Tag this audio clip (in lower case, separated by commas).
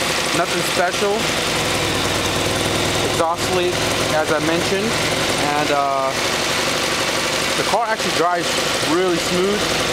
speech, engine, vehicle, vibration, car